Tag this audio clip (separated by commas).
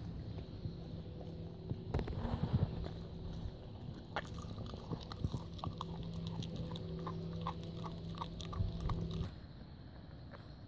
Animal, pets, Dog, outside, rural or natural